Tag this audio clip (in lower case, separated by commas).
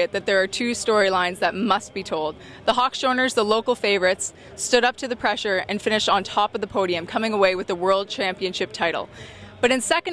speech